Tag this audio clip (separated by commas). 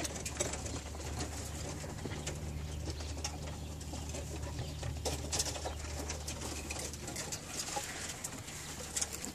dove, Animal, Bird